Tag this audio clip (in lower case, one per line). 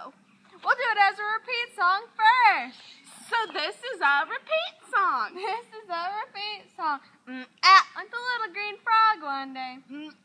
speech